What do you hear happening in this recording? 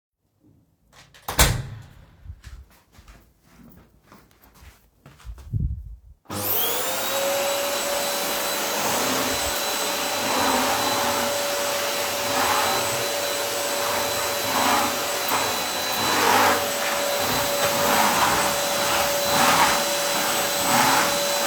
I closed the door, then started the vacuum cleaner